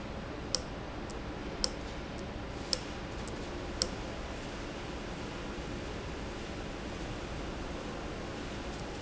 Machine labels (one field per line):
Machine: valve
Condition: abnormal